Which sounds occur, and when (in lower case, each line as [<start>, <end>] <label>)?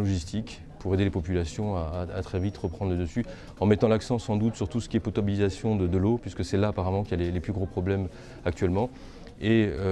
[0.00, 0.58] man speaking
[0.00, 9.91] background noise
[0.00, 9.91] speech noise
[0.76, 3.22] man speaking
[0.77, 0.85] clicking
[2.31, 2.83] squeal
[3.14, 3.25] clicking
[3.23, 3.54] breathing
[3.53, 8.07] man speaking
[8.08, 8.37] breathing
[8.41, 8.83] man speaking
[8.88, 9.33] breathing
[9.24, 9.32] clicking
[9.36, 9.91] man speaking